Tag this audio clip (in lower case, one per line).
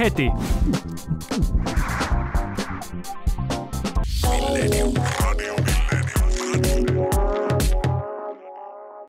speech
music